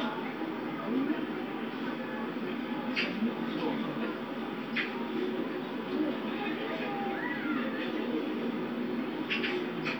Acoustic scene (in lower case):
park